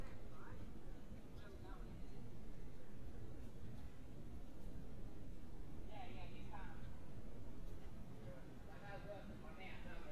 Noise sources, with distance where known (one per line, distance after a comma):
person or small group talking, far